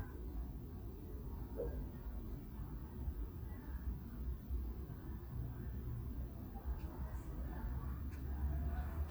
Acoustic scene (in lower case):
residential area